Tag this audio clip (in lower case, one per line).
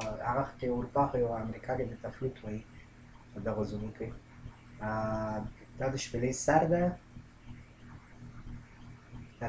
speech